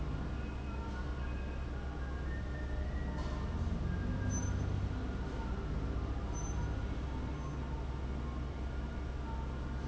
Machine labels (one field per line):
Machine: fan